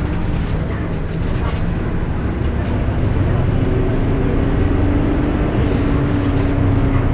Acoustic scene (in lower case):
bus